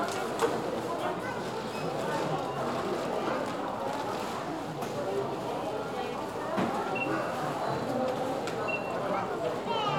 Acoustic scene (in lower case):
crowded indoor space